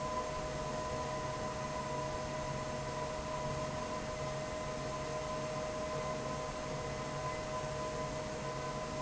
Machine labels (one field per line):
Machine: fan